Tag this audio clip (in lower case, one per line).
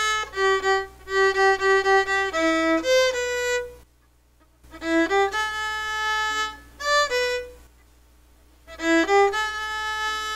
music
violin
musical instrument